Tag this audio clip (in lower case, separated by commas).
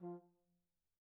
brass instrument, musical instrument, music